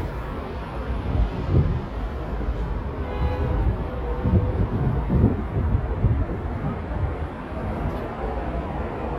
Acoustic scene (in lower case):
street